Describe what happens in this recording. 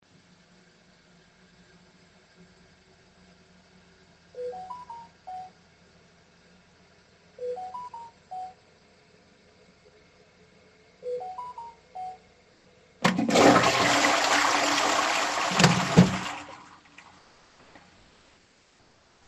I was sitting on the toilet and using my tablet. Meanwhile I got a bunch of notifications. So I stood up and flushed the toilet.